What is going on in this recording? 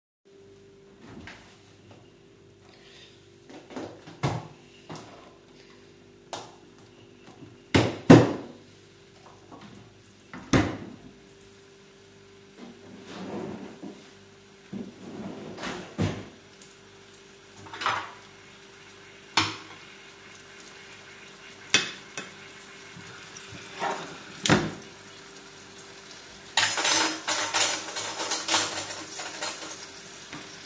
I was cooking on the stove. I opened the fridge door, opened and closed the freezer, closed the fridge door. Then I opened a cutlery drawer and handled some cutlery. I lifted the pan and put it down, then handled some cutlery again.